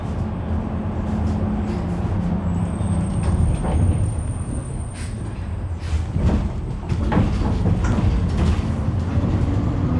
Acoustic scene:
bus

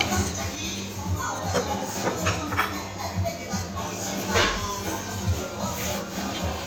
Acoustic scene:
restaurant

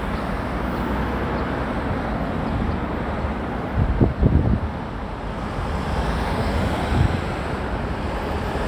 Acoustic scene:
residential area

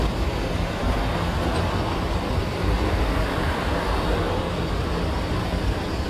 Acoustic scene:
street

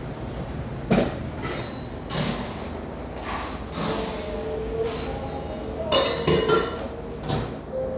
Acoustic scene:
cafe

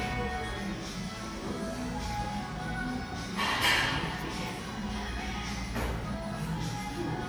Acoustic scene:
cafe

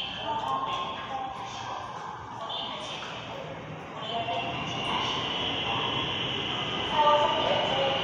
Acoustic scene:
subway station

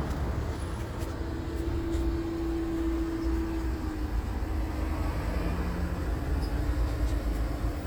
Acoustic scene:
street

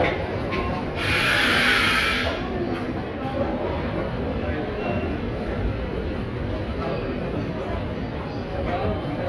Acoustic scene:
subway station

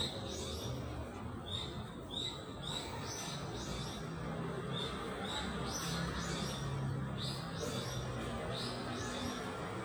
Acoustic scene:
residential area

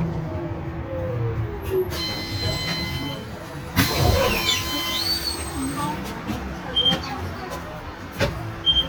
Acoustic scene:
bus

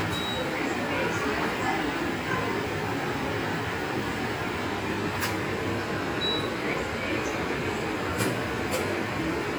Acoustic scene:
subway station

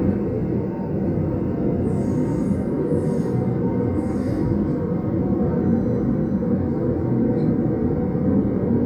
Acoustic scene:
subway train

